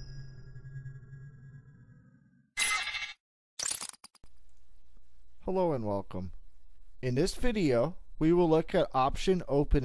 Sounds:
speech, music

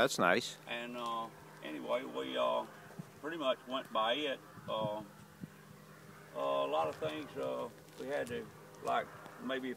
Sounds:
speech

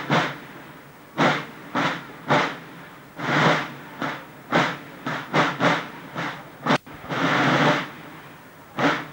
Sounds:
musical instrument, music, drum

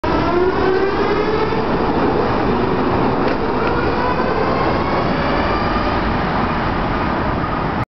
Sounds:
rail transport, vehicle, train

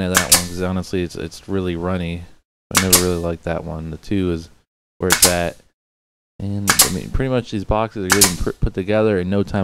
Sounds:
gunshot, cap gun

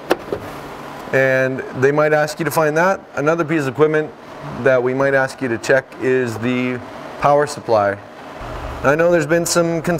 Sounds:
speech

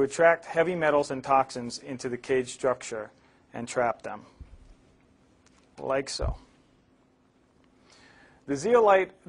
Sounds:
speech

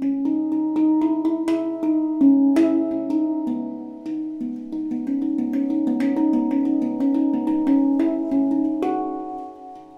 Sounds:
playing steelpan

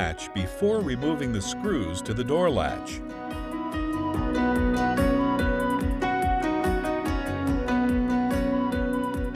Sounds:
music, speech

